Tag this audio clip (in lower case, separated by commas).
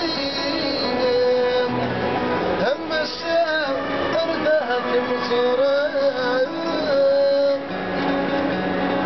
music